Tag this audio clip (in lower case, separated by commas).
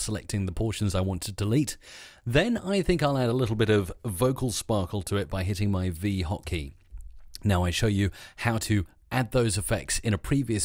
speech